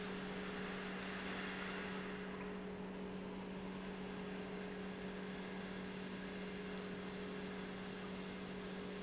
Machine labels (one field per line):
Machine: pump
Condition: normal